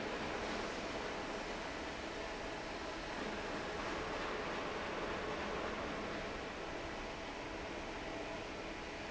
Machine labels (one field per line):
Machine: fan